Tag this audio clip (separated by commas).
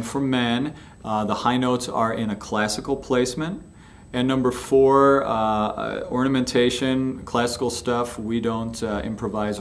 Speech